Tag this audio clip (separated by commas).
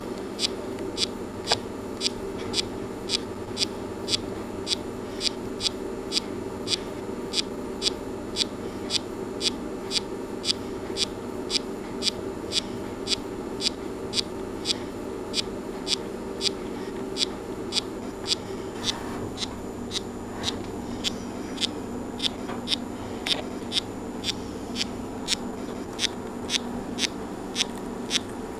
Animal, Insect, Wild animals